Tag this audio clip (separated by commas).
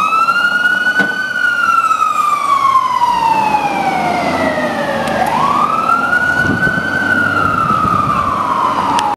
Vehicle